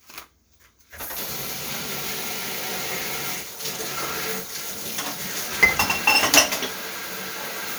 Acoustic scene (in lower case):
kitchen